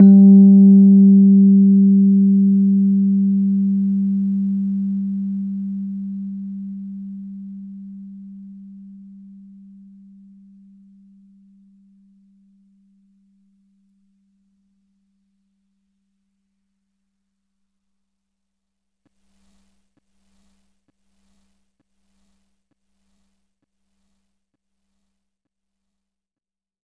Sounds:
Keyboard (musical), Music, Musical instrument, Piano

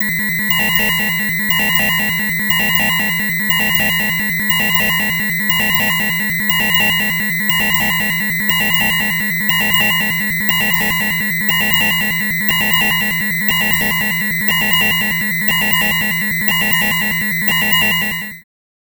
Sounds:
Alarm

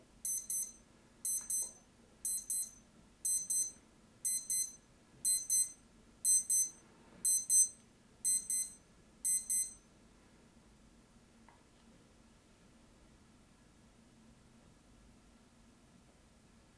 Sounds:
Alarm

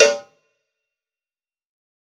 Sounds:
Cowbell, Bell

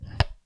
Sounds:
Tools

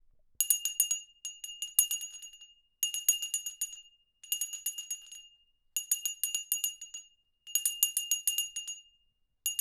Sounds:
Bell

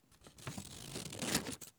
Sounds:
Domestic sounds, Scissors

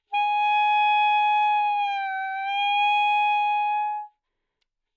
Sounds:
woodwind instrument, Musical instrument, Music

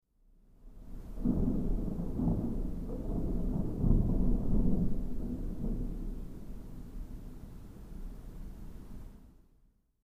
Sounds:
Thunder, Thunderstorm, Water, Rain

